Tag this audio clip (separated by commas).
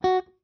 Guitar, Plucked string instrument, Music, Musical instrument